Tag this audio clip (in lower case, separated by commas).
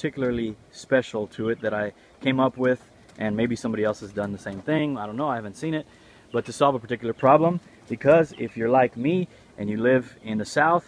speech